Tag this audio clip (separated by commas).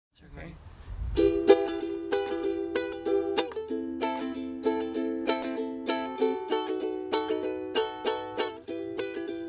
playing ukulele